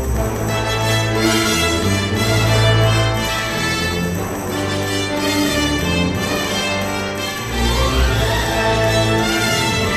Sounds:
music

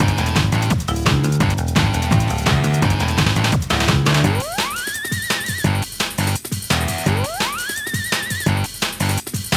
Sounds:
music
soundtrack music

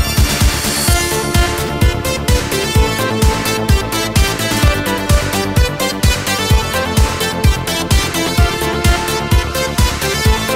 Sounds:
music

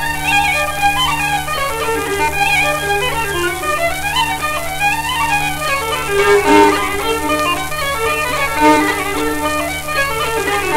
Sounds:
musical instrument
music
violin

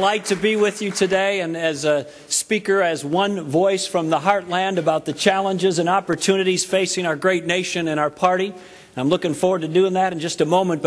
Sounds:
speech
male speech
monologue

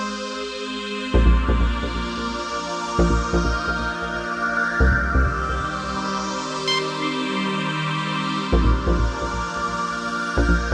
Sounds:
music

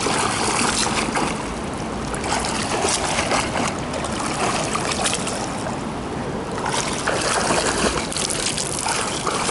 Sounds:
swimming

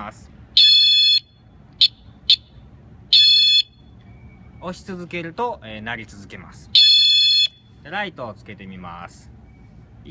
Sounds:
speech
vehicle horn

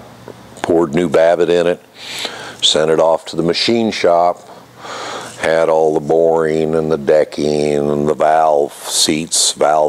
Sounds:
speech

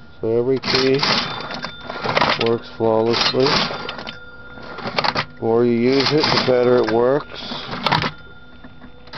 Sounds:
cash register
speech

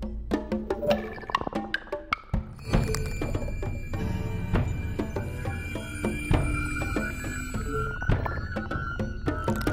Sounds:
music
wood block
percussion

